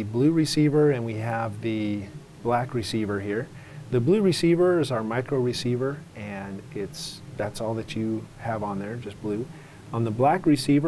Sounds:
Speech

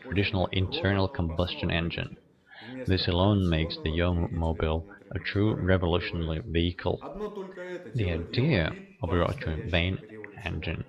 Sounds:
Speech

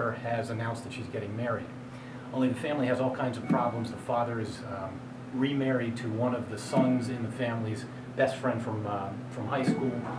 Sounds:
Male speech, Speech

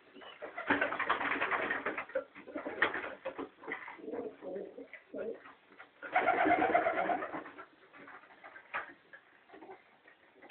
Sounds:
Coo, dove, Bird, bird call

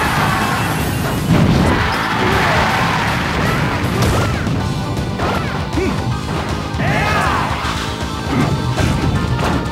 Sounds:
thwack

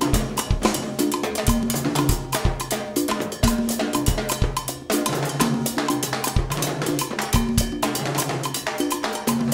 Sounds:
playing timbales

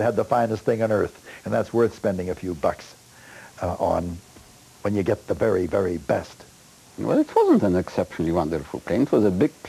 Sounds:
Speech

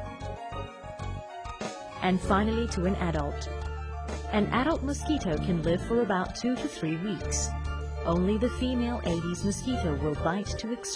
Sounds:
Speech, Music

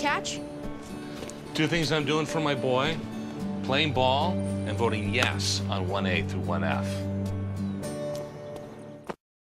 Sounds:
Music, Speech

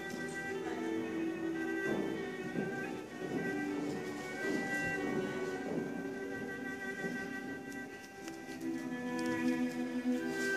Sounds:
fiddle, Musical instrument, Music

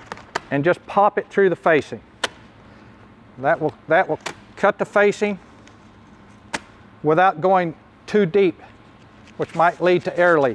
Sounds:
Speech

